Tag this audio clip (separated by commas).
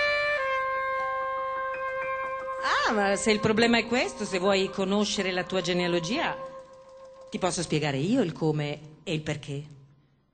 Speech, Music